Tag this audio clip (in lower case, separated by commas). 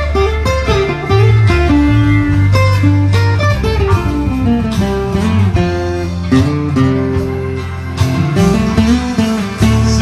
musical instrument, guitar, plucked string instrument, music